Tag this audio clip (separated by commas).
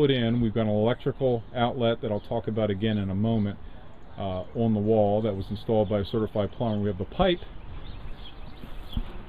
Speech